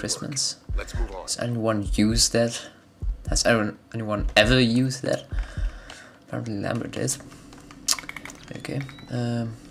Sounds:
Speech

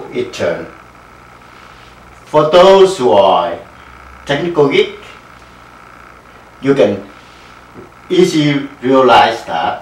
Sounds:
Speech

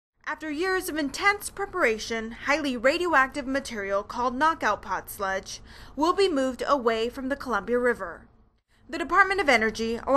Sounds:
Narration

